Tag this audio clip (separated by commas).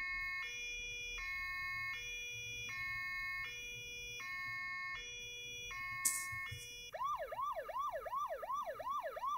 Ambulance (siren), Police car (siren), Siren